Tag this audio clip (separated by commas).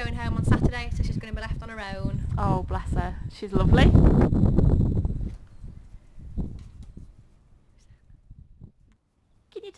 Speech